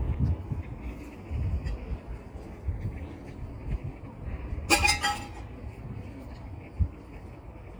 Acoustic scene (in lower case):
residential area